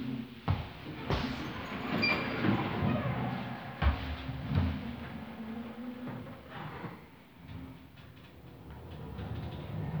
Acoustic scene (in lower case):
elevator